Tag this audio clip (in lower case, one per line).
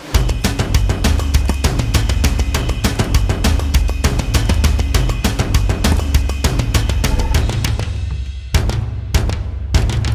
music